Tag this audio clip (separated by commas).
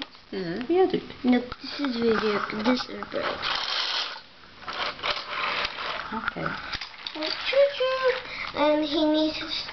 Speech